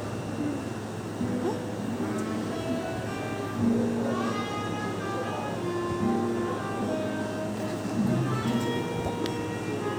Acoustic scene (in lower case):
cafe